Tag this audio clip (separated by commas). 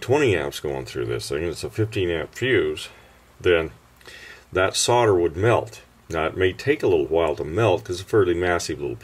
Speech